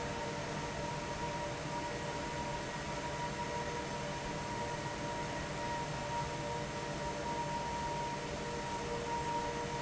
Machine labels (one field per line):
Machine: fan